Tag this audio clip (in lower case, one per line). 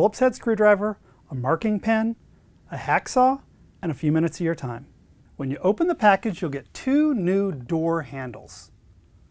speech